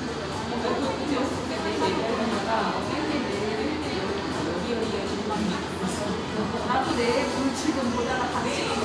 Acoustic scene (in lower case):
cafe